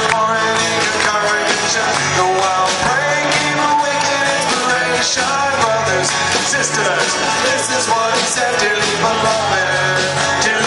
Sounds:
music
rock and roll
singing

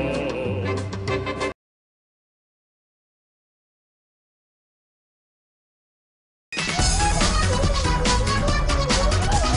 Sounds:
music

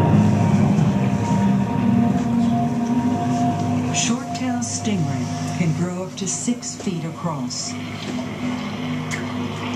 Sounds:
music
television
speech

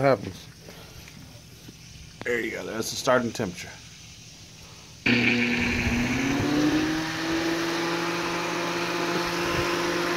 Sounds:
inside a large room or hall
speech

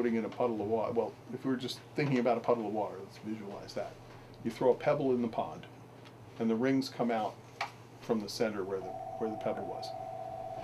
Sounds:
speech

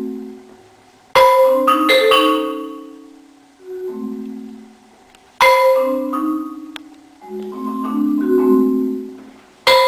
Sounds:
xylophone
musical instrument
music

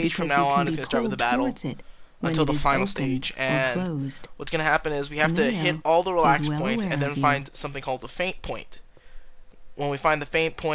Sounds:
speech

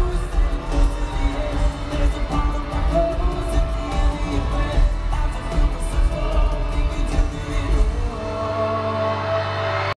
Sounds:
music
male singing

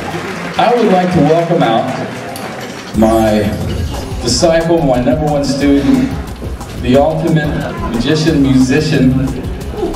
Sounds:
speech
music

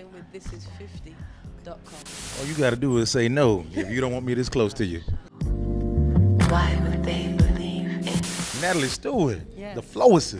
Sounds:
music
speech

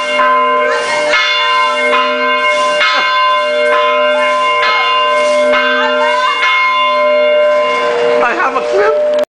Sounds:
speech

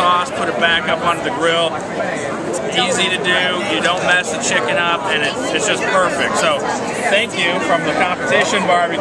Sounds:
speech

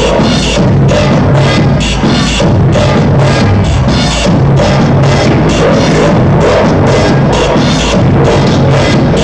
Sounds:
music
techno
house music

